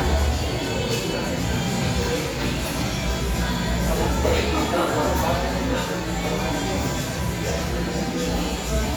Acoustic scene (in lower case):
cafe